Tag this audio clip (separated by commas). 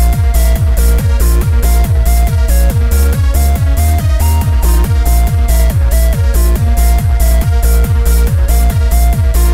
Techno, Music